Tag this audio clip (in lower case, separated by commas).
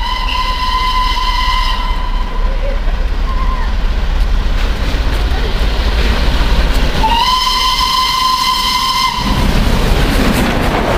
speech